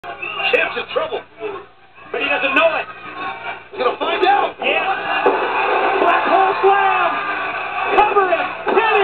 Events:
[0.00, 9.03] mechanisms
[0.18, 0.62] whistling
[4.61, 8.55] cheering
[5.21, 5.51] slam
[7.88, 8.51] shout
[8.64, 9.01] male speech
[8.67, 8.93] tap

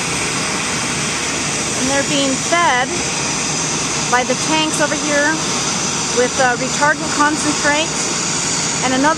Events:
[0.00, 9.15] aircraft engine
[1.78, 3.02] female speech
[4.15, 5.49] female speech
[6.18, 7.97] female speech

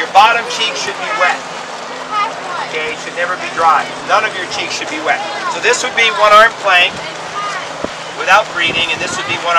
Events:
[0.00, 9.55] motor vehicle (road)
[0.00, 9.55] wind
[0.13, 1.45] man speaking
[0.90, 1.25] kid speaking
[2.09, 2.73] kid speaking
[2.73, 3.86] man speaking
[3.45, 3.87] kid speaking
[4.07, 5.18] man speaking
[5.16, 6.17] kid speaking
[5.58, 6.91] man speaking
[6.90, 7.08] wind noise (microphone)
[6.97, 7.16] kid speaking
[7.29, 7.69] kid speaking
[7.82, 7.92] wind noise (microphone)
[8.15, 9.55] man speaking
[8.61, 9.37] wind noise (microphone)
[8.94, 9.49] kid speaking

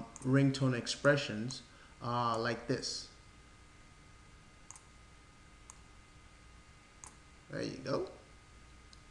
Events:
[0.00, 9.10] sine wave
[0.14, 0.27] clicking
[0.19, 1.66] man speaking
[1.03, 1.09] clicking
[1.48, 1.61] clicking
[1.62, 1.98] breathing
[2.00, 3.12] man speaking
[2.33, 2.45] clicking
[4.71, 4.84] clicking
[5.65, 5.79] clicking
[7.02, 7.11] clicking
[7.50, 8.07] man speaking
[8.89, 9.01] clicking

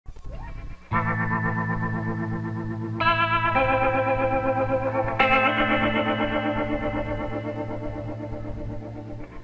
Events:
[0.02, 9.43] background noise
[0.04, 9.43] music

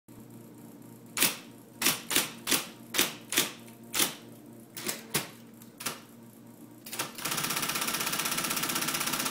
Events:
[0.08, 9.30] mechanisms
[5.58, 5.69] tick

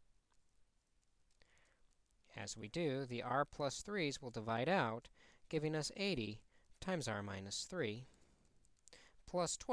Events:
[0.00, 9.72] background noise
[0.26, 0.32] tick
[0.98, 1.05] tick
[1.35, 1.43] tick
[1.42, 1.78] breathing
[1.87, 1.93] tick
[2.22, 4.97] man speaking
[2.68, 2.75] tick
[4.32, 4.36] tick
[5.02, 5.08] tick
[5.13, 5.41] breathing
[5.47, 6.41] man speaking
[6.44, 6.75] breathing
[6.76, 8.02] man speaking
[6.80, 6.86] tick
[8.07, 8.53] breathing
[8.88, 8.95] tick
[8.92, 9.16] breathing
[9.22, 9.72] man speaking
[9.26, 9.31] tick
[9.57, 9.65] tick

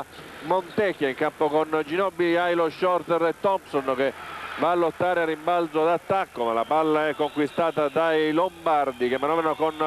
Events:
[0.00, 9.85] mechanisms
[0.11, 0.26] squeal
[0.39, 4.10] male speech
[0.63, 0.77] squeal
[4.10, 4.90] cheering
[4.40, 4.63] generic impact sounds
[4.54, 9.85] male speech
[6.32, 9.85] whistling
[6.62, 9.85] cheering

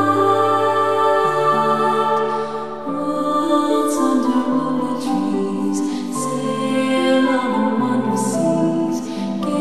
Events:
[0.00, 9.60] music
[2.14, 2.20] tick
[2.33, 2.78] breathing
[2.98, 5.81] female singing
[5.84, 6.07] breathing
[6.14, 9.01] female singing
[9.01, 9.30] breathing

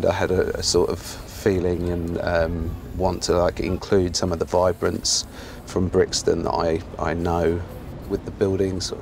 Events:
[0.00, 9.01] noise
[5.23, 5.60] breathing
[6.93, 8.31] spray
[8.09, 9.01] male speech

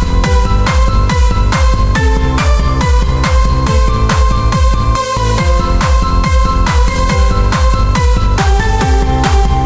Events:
[0.01, 9.65] music

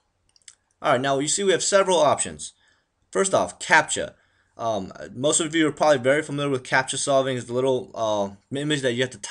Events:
[0.00, 9.30] background noise
[0.26, 0.77] clicking
[0.81, 2.54] man speaking
[2.56, 2.88] surface contact
[2.65, 2.78] clicking
[3.12, 4.13] man speaking
[4.16, 4.52] surface contact
[4.55, 9.30] man speaking

